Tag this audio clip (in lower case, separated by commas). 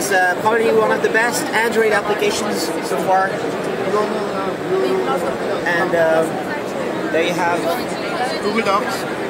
speech